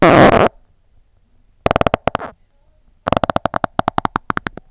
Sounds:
fart

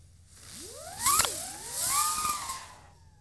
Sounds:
fireworks, explosion

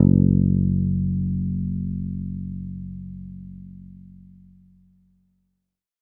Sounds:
guitar, musical instrument, bass guitar, plucked string instrument, music

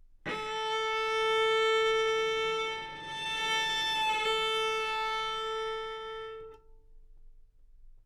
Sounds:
bowed string instrument, musical instrument, music

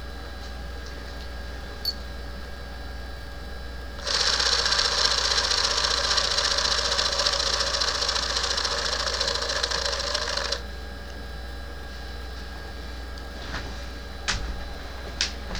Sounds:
camera, mechanisms

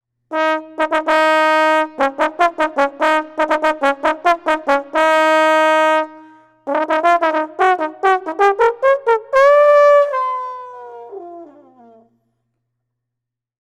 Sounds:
musical instrument, brass instrument, music

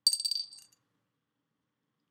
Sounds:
home sounds, coin (dropping)

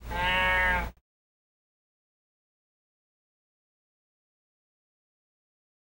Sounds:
animal, livestock

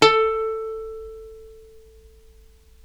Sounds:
music, musical instrument, plucked string instrument

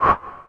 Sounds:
swish

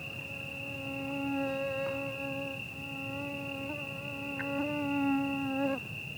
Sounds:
wild animals, buzz, insect, animal, cricket

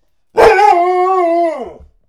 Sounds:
bark, dog, domestic animals, animal

